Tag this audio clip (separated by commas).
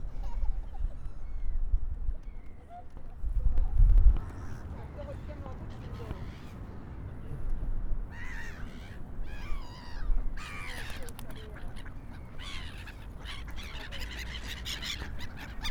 Bird, Wild animals, Animal, Gull